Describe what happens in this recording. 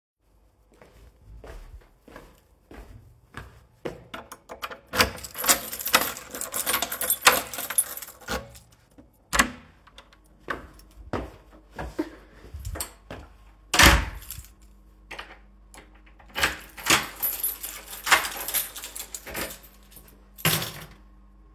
I came home. Unlocked the door, went inside, locked the door and placed the key on a wardrobe.